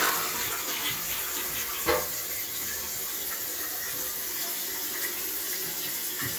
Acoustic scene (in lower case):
restroom